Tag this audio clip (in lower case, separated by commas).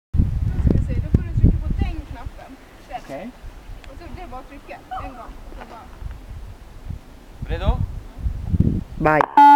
speech